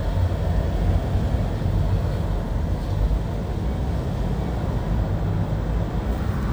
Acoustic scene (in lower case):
car